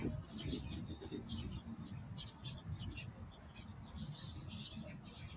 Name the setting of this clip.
park